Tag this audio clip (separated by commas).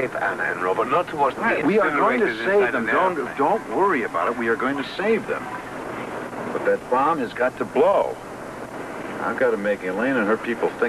Speech, Eruption